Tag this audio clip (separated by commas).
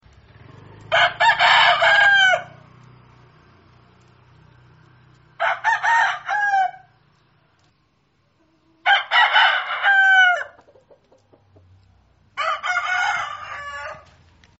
Fowl, Chicken, Animal, livestock